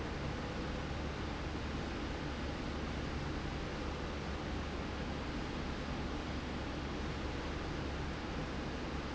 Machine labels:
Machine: slide rail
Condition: normal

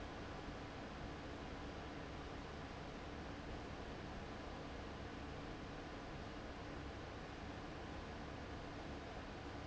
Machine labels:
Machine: fan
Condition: abnormal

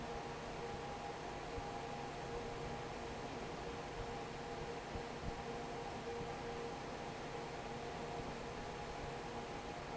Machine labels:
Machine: fan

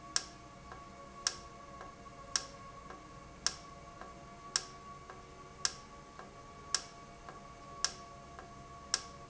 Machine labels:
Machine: valve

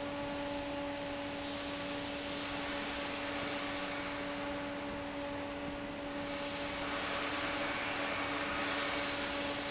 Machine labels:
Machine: fan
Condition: abnormal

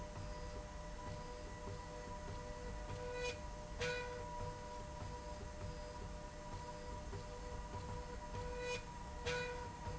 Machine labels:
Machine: slide rail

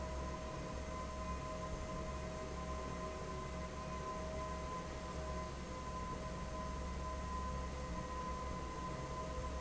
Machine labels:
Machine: fan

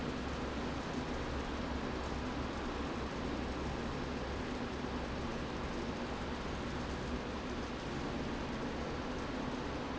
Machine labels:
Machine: fan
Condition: normal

